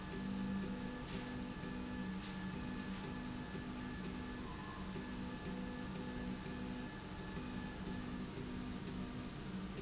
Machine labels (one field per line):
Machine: slide rail